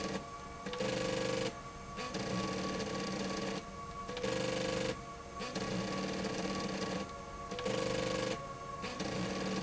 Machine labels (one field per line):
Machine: slide rail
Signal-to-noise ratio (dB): 0 dB